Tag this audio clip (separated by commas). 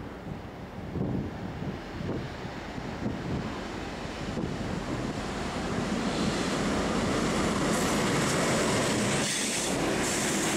Train, Railroad car, Vehicle, Rail transport